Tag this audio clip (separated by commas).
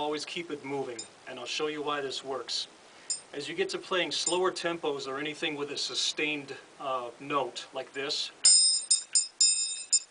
Percussion, Music, Speech